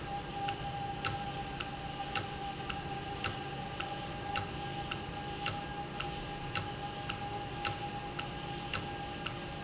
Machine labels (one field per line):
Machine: valve